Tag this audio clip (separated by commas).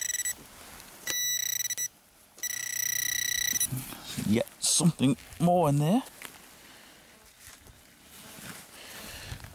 bleep, Speech, outside, rural or natural